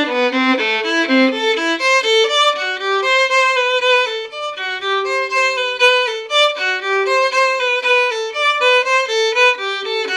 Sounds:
violin, musical instrument, music

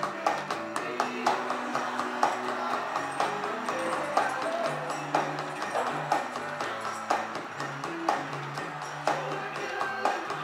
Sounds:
drum, musical instrument, drum kit, music

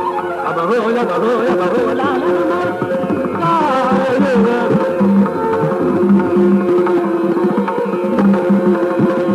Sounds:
drum, percussion, tabla

